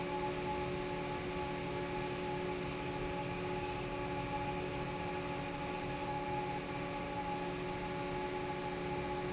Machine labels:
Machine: fan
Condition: normal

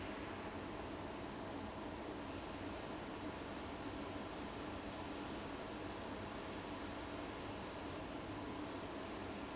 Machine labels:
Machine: fan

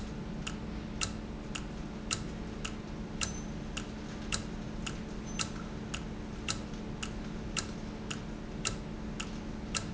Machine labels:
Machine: valve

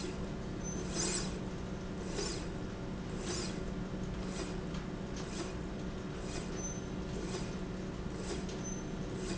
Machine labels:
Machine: slide rail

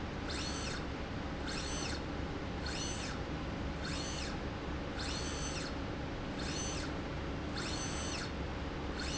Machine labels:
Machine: slide rail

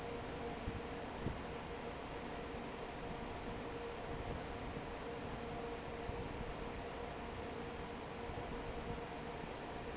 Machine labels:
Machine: fan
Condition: normal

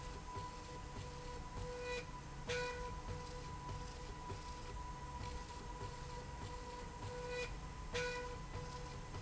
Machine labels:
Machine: slide rail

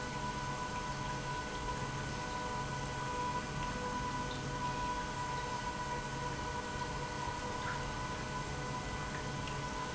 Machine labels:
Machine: pump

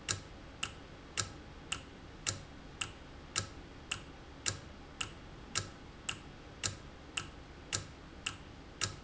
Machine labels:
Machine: valve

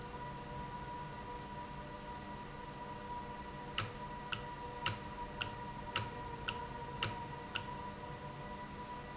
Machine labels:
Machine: valve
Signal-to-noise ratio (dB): 0 dB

